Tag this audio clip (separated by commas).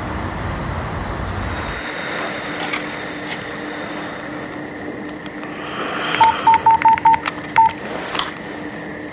Telephone dialing